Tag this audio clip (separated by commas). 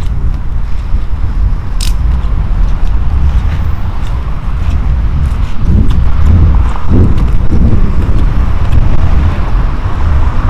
outside, urban or man-made